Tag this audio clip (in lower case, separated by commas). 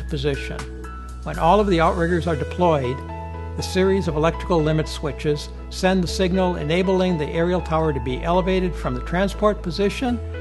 music, speech